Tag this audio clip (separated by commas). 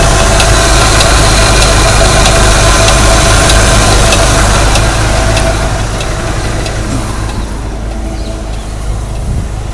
Engine, Vehicle